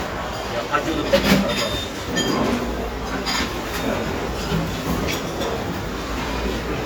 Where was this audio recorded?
in a restaurant